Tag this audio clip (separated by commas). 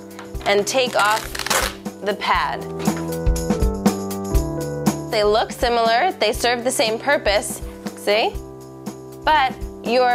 Speech, Music